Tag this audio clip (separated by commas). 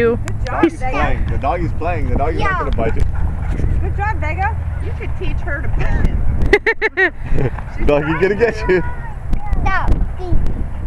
Dog, pets, Animal, Speech